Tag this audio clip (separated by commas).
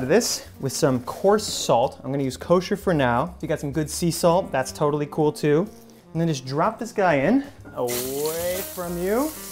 Sizzle